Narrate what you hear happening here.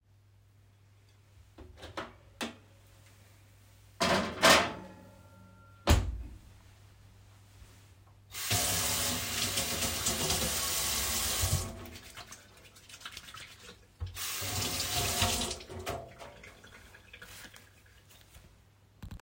i opened the microwave, put in the utensil with food inside, closed the microwave, turned on the tap and washed my hands, the water from hand drips into the sink.